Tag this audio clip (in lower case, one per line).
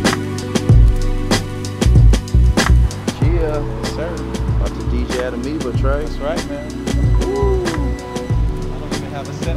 music
speech